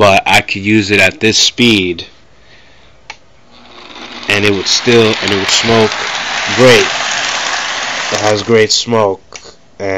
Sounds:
train
inside a small room
speech

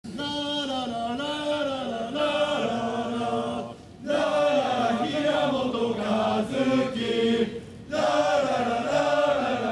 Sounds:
music
chant

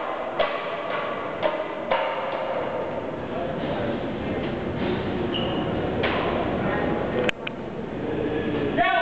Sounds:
speech

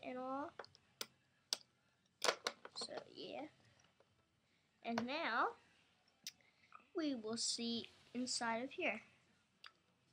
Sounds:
speech

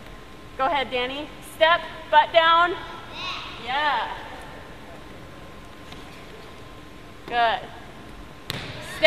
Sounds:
speech

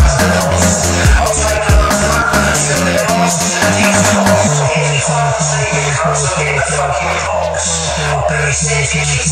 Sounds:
electronic music
dubstep
music

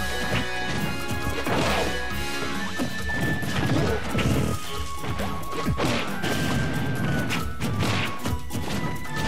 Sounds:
music
smash

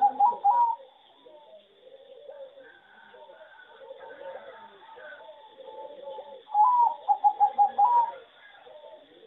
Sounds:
bird vocalization
bird

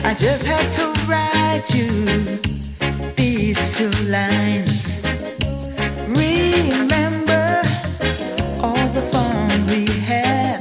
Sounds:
music

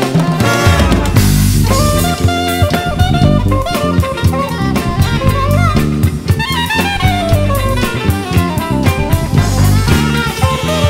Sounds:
music
jazz
orchestra

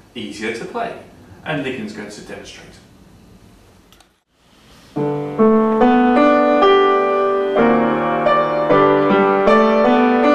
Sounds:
speech
music

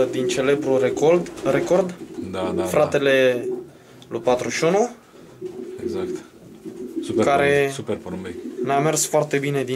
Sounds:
dove
speech
bird

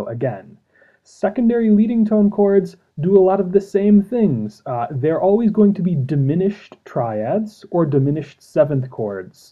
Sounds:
speech

